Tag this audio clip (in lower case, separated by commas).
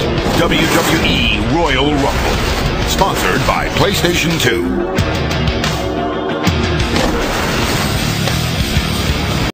speech, music